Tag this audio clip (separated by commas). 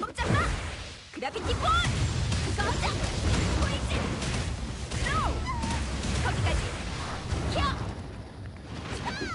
Speech